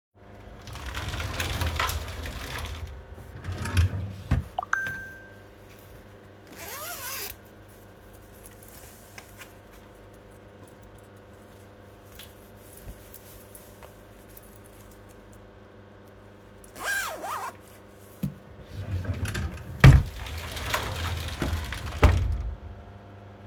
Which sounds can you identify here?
wardrobe or drawer, phone ringing